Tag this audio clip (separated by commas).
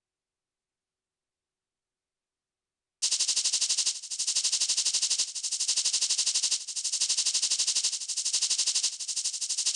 Music